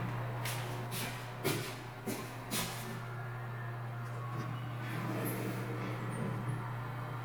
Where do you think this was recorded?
in an elevator